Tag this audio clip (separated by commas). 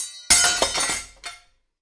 home sounds, Cutlery